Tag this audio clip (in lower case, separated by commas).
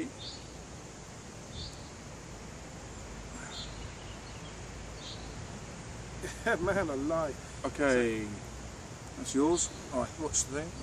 speech, outside, rural or natural